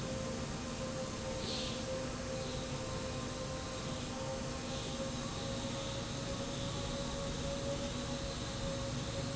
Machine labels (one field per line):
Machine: slide rail